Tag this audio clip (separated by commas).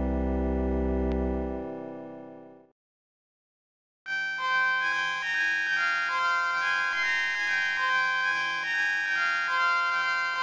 Music, Keyboard (musical), Piano, Musical instrument